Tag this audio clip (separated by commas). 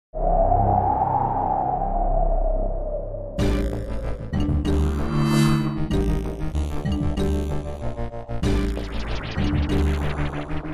Music